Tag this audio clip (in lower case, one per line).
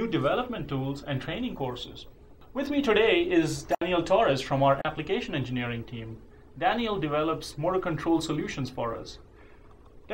speech